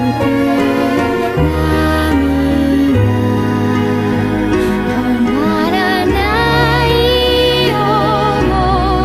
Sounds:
Music

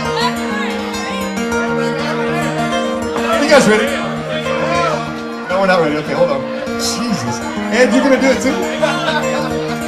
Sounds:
Music, Speech

